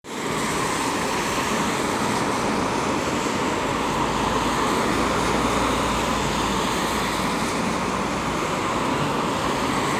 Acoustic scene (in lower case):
street